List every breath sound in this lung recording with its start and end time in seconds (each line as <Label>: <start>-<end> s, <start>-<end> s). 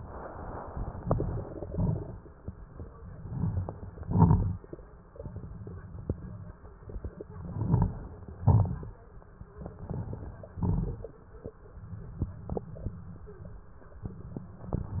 Inhalation: 1.00-1.67 s, 3.20-3.87 s, 7.42-8.15 s, 9.62-10.56 s
Exhalation: 1.66-2.33 s, 3.99-4.66 s, 8.25-8.98 s, 10.61-11.54 s
Crackles: 0.98-1.65 s, 1.66-2.33 s, 3.20-3.87 s, 3.99-4.66 s, 7.42-8.15 s, 8.25-8.98 s, 9.62-10.56 s, 10.61-11.54 s